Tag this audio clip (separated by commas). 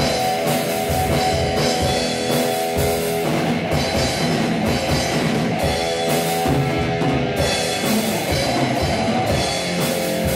Bass drum, Drum, Musical instrument, Drum kit, Music